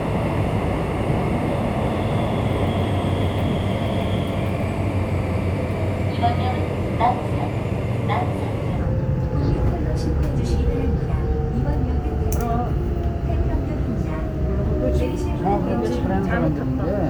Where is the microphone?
on a subway train